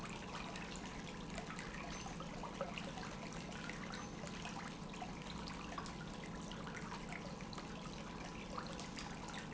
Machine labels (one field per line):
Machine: pump